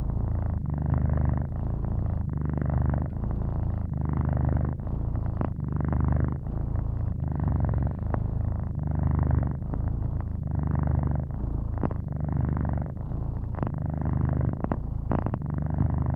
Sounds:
purr, domestic animals, animal, cat

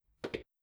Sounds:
footsteps

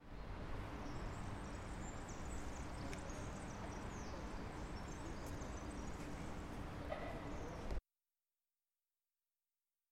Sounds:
bird, tweet, bird vocalization, wild animals, animal

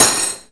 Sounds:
domestic sounds, cutlery

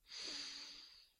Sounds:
respiratory sounds

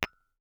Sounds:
glass, tap

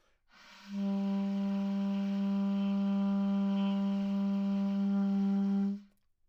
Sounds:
musical instrument, woodwind instrument, music

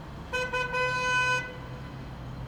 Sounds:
motor vehicle (road), roadway noise, alarm, vehicle, vehicle horn, car

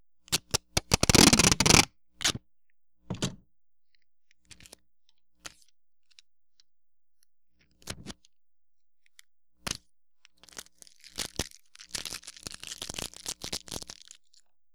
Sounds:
packing tape, domestic sounds

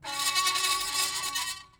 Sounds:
screech

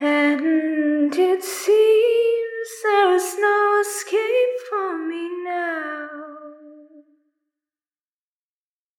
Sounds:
female singing, singing, human voice

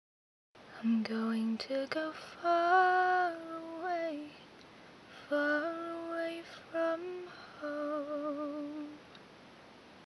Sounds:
singing, female singing, human voice

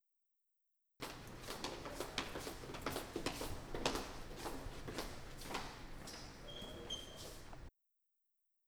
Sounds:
walk

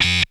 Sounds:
music, musical instrument

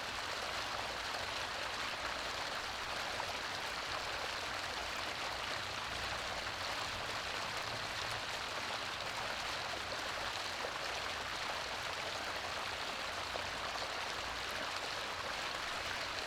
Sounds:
stream, water

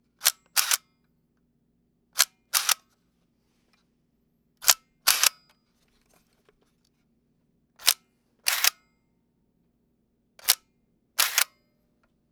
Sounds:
mechanisms, camera

